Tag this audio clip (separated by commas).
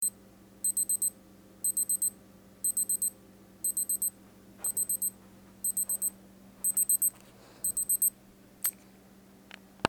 Alarm